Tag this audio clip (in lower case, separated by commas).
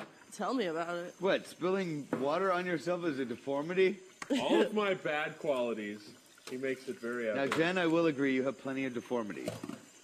speech